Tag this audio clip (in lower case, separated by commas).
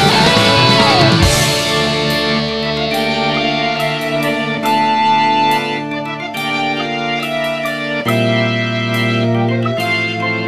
background music, music